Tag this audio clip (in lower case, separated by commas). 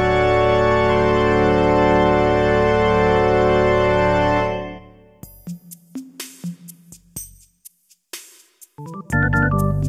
music